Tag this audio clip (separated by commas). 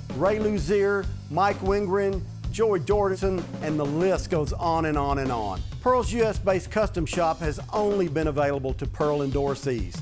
Music, Rhythm and blues, Speech